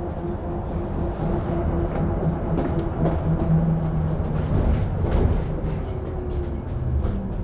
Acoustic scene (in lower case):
bus